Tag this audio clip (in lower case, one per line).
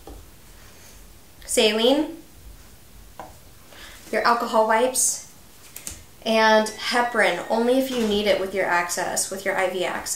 speech